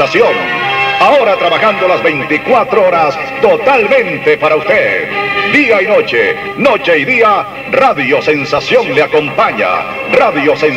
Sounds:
Radio, Music, Speech

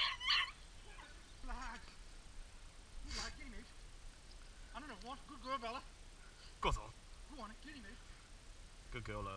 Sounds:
Dog

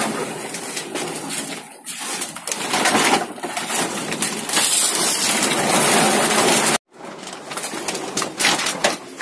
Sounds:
plastic bottle crushing

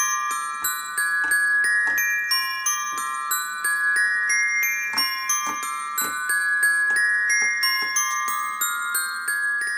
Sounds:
Music, Tender music

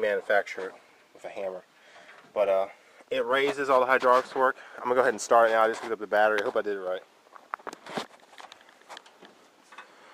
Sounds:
Speech, outside, rural or natural

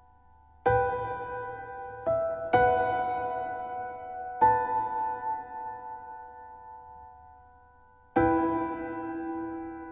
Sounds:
Music

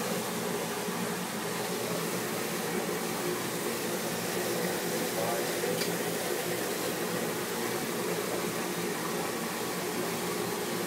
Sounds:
Water

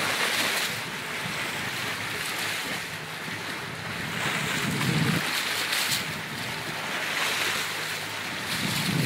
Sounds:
Waves, Ocean, Wind noise (microphone), Wind, wind noise

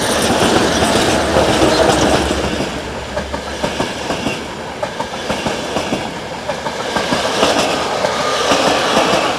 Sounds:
Railroad car, Vehicle, outside, urban or man-made, Train

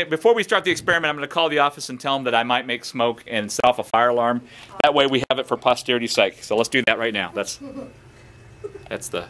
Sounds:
Speech

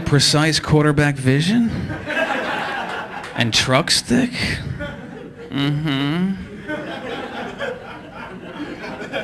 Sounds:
Speech, Laughter

